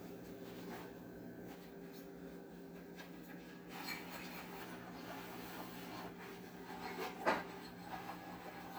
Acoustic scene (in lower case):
kitchen